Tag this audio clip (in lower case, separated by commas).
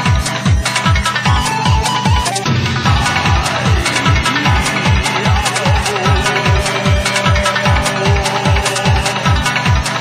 dance music, music